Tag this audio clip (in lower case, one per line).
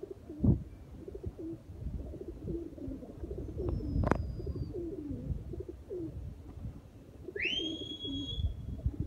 bird
outside, rural or natural
dove